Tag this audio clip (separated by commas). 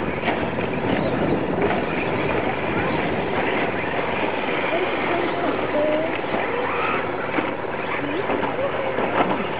Speech, Car